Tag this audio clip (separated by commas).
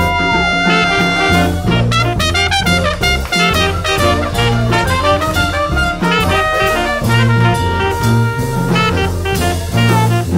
Brass instrument, playing trumpet, Music, Trumpet, Musical instrument